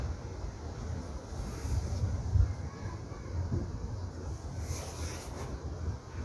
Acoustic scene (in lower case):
park